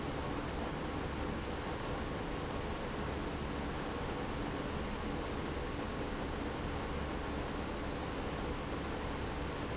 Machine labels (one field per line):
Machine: pump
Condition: abnormal